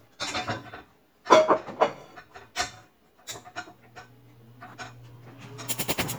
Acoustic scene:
kitchen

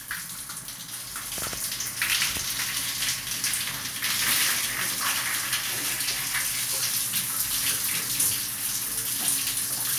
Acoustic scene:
restroom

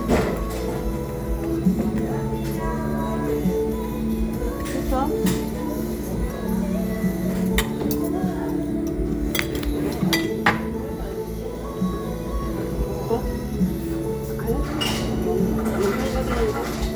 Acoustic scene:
crowded indoor space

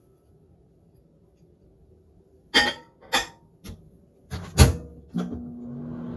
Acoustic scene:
kitchen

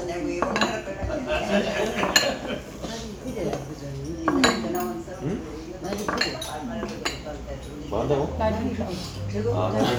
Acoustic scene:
crowded indoor space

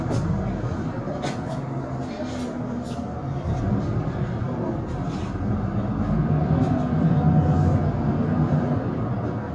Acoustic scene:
bus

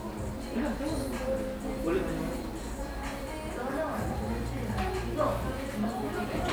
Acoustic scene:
cafe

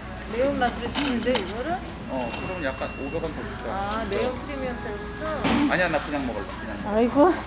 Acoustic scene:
restaurant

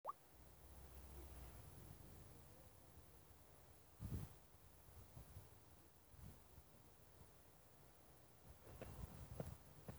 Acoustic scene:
residential area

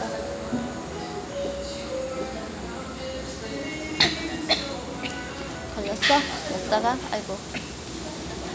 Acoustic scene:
restaurant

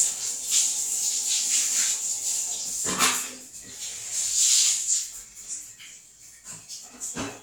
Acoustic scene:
restroom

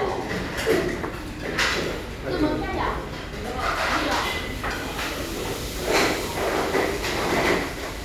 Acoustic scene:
restaurant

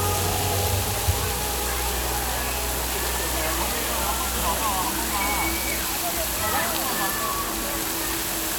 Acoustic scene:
park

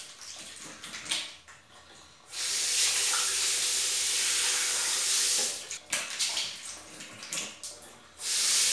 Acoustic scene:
restroom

